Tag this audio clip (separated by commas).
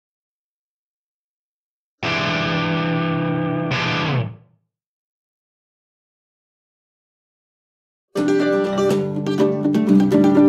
Music, Guitar, Acoustic guitar, Plucked string instrument, Musical instrument, Ukulele